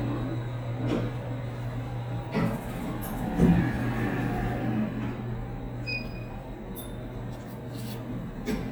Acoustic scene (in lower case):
elevator